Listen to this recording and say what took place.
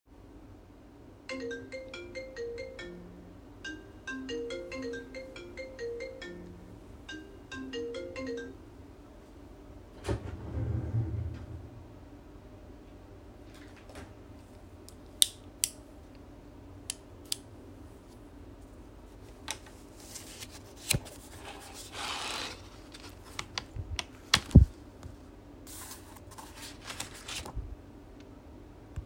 My phone started ringing. then i opened my drawer and grabbed the pen. then clicked pen and took some paper to write.